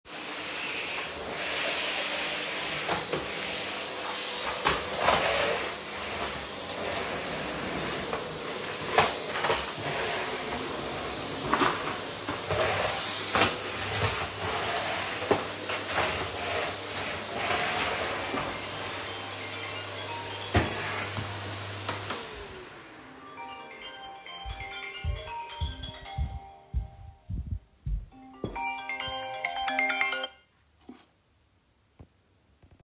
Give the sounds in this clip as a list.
vacuum cleaner, phone ringing, footsteps